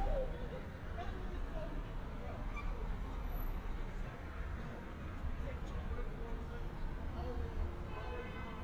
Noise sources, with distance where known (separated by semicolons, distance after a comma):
person or small group talking, far